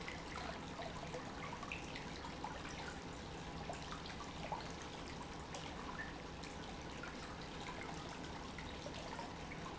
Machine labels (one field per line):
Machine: pump